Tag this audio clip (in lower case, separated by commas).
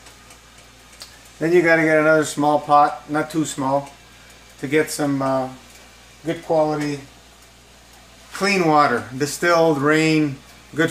speech